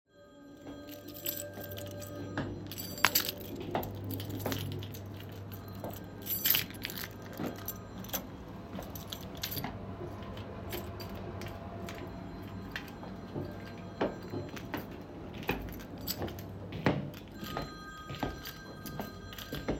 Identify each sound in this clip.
phone ringing, footsteps, keys